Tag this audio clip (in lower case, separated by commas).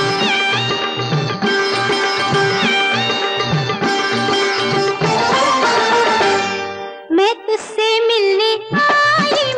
sitar, music of bollywood, music, singing